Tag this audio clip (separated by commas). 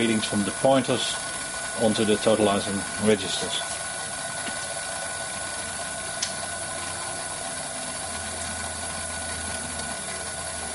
inside a small room, Speech